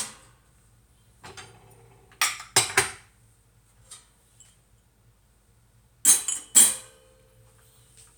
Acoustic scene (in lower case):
kitchen